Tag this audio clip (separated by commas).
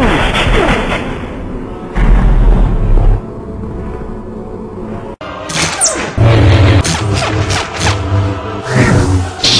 Animal, Music